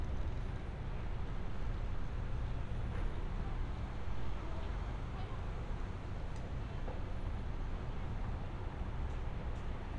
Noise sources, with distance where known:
person or small group talking, far

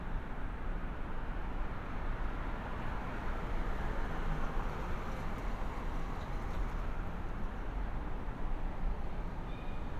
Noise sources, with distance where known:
engine of unclear size, near

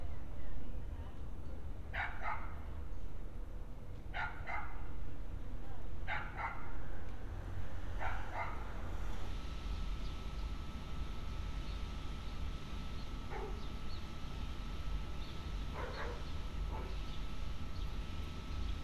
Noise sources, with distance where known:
dog barking or whining

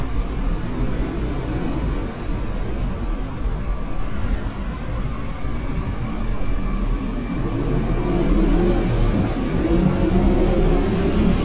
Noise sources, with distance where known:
engine of unclear size, near

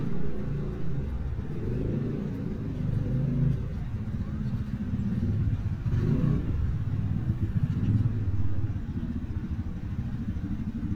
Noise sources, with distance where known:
medium-sounding engine, near

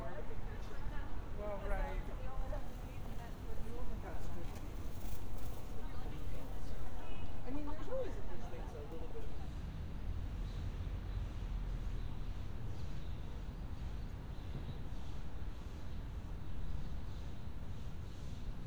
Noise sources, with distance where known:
background noise

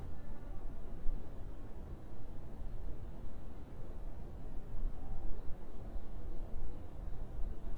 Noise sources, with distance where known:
background noise

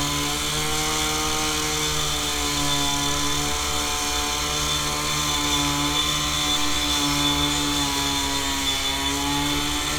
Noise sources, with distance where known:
unidentified powered saw, near

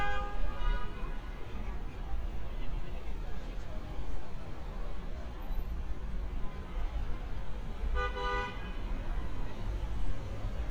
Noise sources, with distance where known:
car horn, near
person or small group talking, far

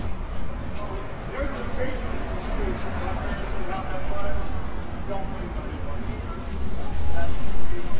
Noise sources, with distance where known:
person or small group talking, near

